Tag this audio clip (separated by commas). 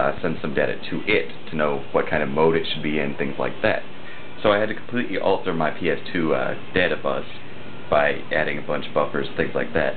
Speech